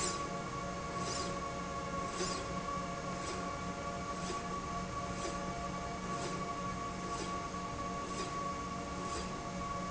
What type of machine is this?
slide rail